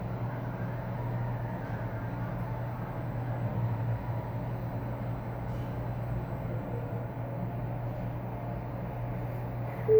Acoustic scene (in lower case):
elevator